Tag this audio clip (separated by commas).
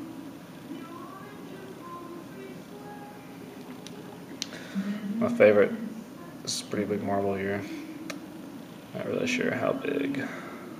Speech